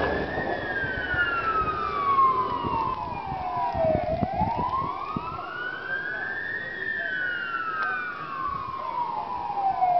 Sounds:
fire engine

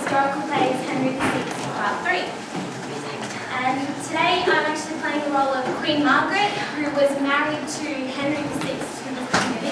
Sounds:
speech
monologue

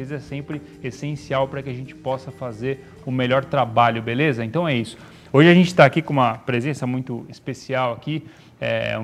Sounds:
speech
music

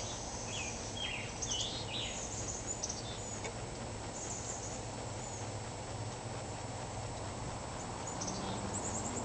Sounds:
outside, rural or natural

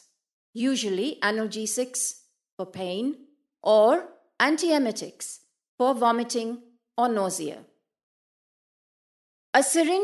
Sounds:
speech

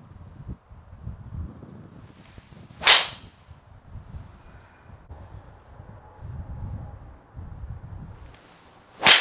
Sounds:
golf driving

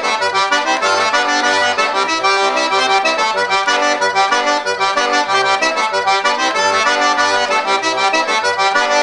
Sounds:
music

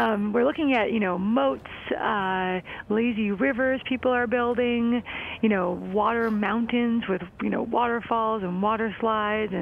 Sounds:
speech

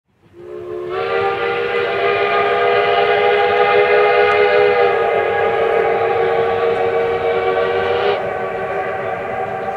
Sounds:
train whistle

